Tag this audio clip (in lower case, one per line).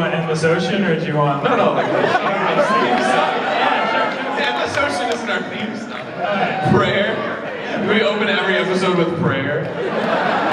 speech